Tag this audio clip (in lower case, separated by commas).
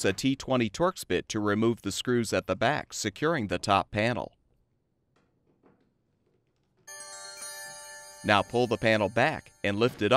speech, music